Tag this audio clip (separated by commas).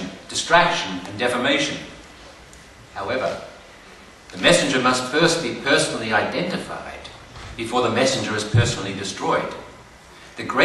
Speech, man speaking